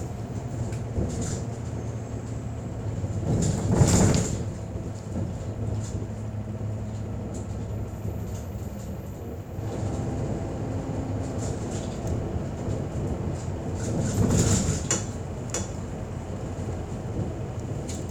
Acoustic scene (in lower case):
bus